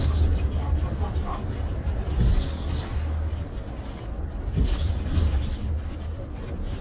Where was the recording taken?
on a bus